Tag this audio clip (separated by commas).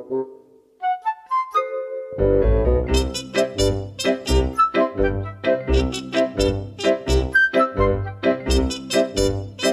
Music